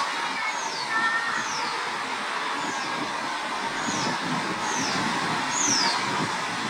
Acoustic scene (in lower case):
park